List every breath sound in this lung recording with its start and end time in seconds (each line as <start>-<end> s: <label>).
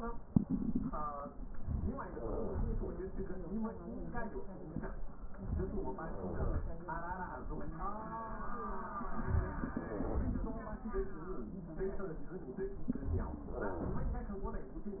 No breath sounds were labelled in this clip.